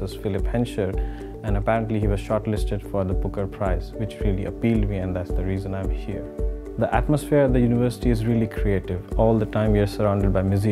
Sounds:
music
speech

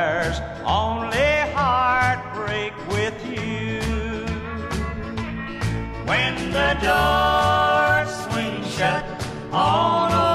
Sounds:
music

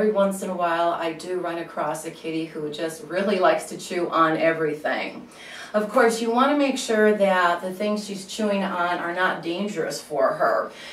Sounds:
speech

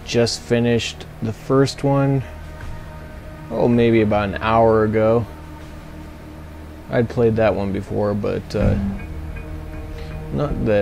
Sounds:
music
speech

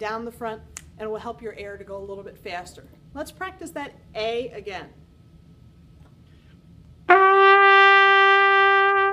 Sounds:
playing cornet

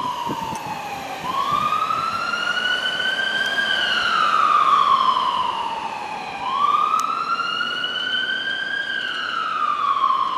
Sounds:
emergency vehicle
vehicle
motor vehicle (road)
fire truck (siren)
truck

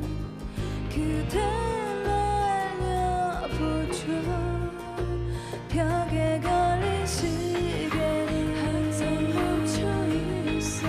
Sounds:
music

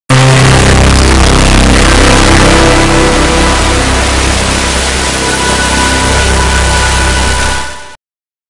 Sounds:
music

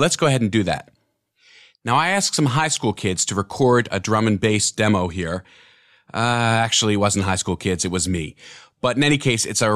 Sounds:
speech

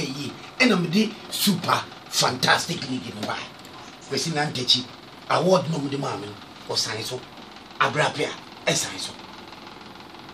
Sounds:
speech

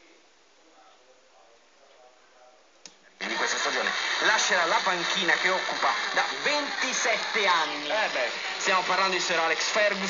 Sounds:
speech
radio

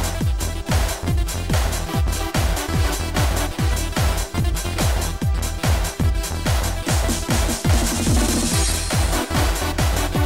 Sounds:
roll
music

